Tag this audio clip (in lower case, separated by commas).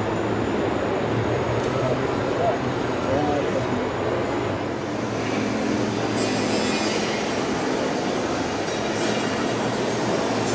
truck, speech, vehicle